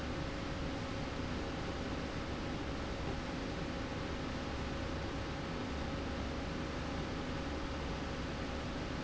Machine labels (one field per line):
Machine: slide rail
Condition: normal